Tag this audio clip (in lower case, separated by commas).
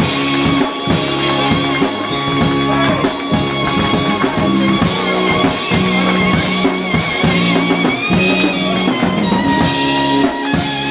speech, music